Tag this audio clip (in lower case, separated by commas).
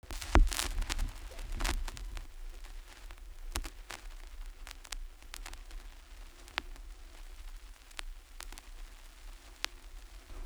crackle